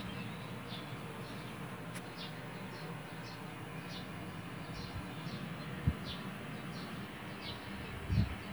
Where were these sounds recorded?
in a park